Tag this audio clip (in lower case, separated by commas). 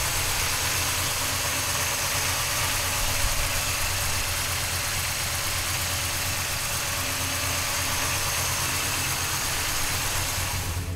idling, vehicle